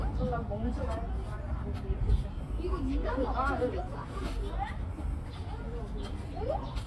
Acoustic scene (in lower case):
park